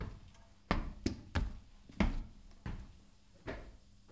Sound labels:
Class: footsteps